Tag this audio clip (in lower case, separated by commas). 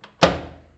home sounds, microwave oven